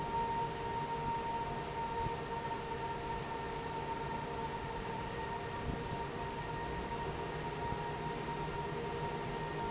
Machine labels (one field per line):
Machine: fan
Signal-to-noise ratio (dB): -6 dB